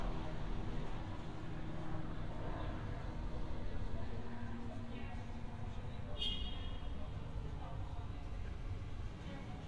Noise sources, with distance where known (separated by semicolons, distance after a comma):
car horn, near; person or small group talking